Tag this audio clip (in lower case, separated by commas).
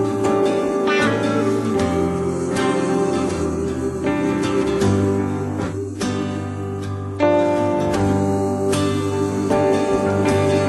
music